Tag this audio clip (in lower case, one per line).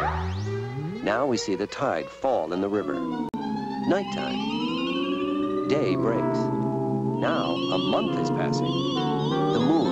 speech
music